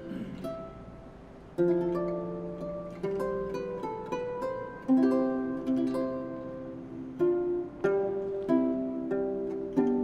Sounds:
playing harp

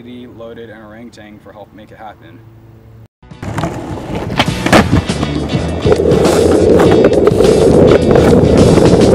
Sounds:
Skateboard, skateboarding

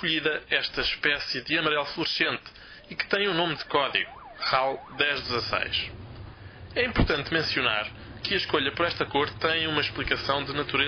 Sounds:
Speech, Ambulance (siren), Vehicle

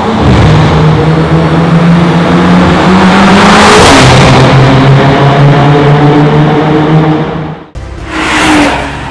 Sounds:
Music

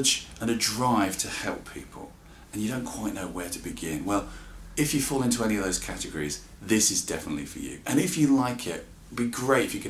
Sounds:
Speech

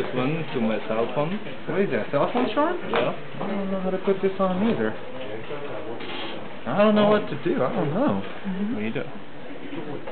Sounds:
Speech

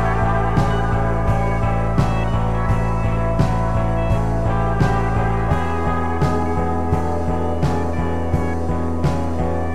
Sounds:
Music, Rock and roll

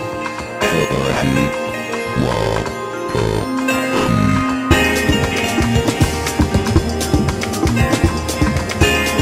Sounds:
Music

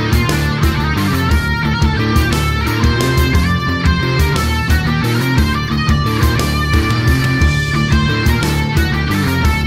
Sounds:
Music, Heavy metal

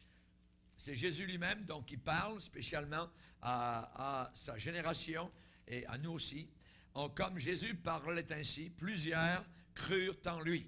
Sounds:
Speech

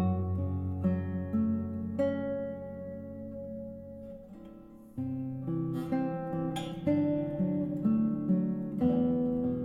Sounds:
Strum, Acoustic guitar, Music, Guitar, Musical instrument, Plucked string instrument

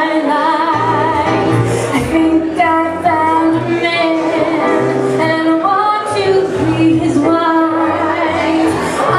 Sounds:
inside a large room or hall, Music, Singing

